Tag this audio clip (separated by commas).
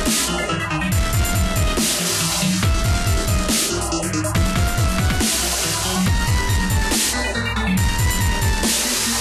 Electronic music, Dubstep, Music